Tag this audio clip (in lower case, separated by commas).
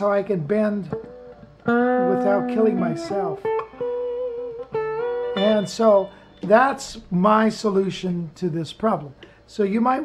musical instrument, speech, tapping (guitar technique), music, plucked string instrument, guitar